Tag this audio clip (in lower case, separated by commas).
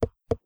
tap